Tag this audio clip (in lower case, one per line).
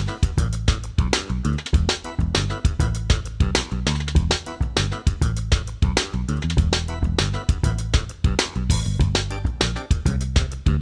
music